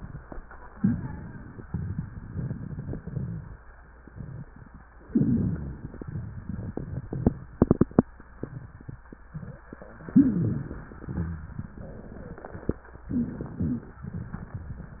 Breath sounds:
0.77-1.33 s: rhonchi
0.77-1.60 s: inhalation
1.68-3.55 s: crackles
5.04-5.86 s: rhonchi
5.04-6.04 s: inhalation
6.07-7.57 s: crackles
10.05-10.99 s: inhalation
10.09-10.74 s: rhonchi
11.06-12.81 s: crackles
13.11-14.05 s: inhalation
13.11-14.05 s: rhonchi
14.05-15.00 s: crackles

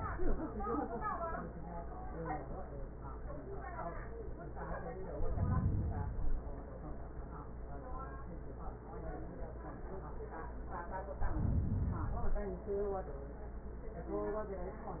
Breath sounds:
5.00-6.50 s: inhalation
11.10-12.60 s: inhalation

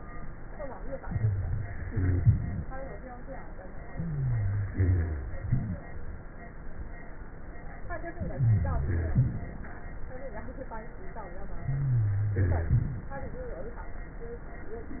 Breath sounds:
0.99-1.86 s: inhalation
0.99-1.86 s: rhonchi
1.92-2.75 s: exhalation
1.92-2.75 s: rhonchi
3.91-4.69 s: inhalation
3.91-4.69 s: wheeze
4.72-5.47 s: exhalation
4.72-5.47 s: rhonchi
8.33-9.15 s: inhalation
8.33-9.15 s: wheeze
9.18-9.75 s: exhalation
11.67-13.21 s: rhonchi

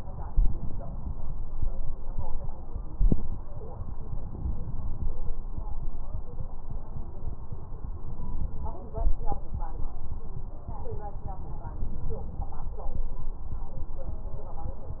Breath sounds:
0.00-1.44 s: inhalation
3.87-5.31 s: inhalation

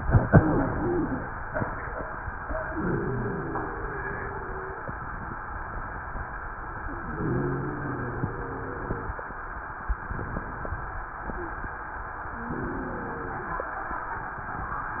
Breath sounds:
0.23-0.63 s: wheeze
0.76-1.16 s: wheeze
2.64-4.97 s: inhalation
2.64-4.97 s: wheeze
7.02-9.20 s: inhalation
7.02-9.20 s: wheeze
11.35-11.59 s: wheeze
12.41-13.62 s: inhalation
12.41-13.62 s: wheeze

